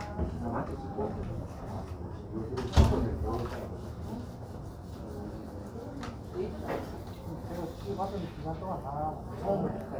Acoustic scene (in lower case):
crowded indoor space